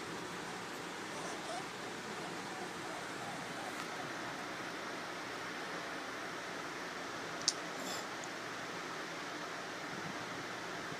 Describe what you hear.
A dog is lightly whimpering